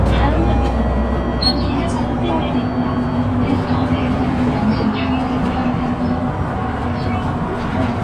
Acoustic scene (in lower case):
bus